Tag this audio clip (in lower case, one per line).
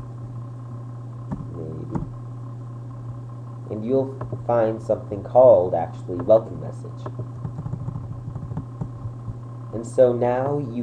speech
inside a small room